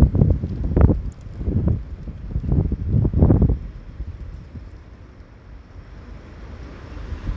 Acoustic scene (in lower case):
street